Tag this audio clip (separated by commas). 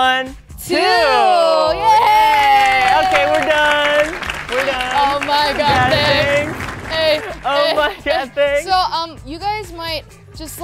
Music, Speech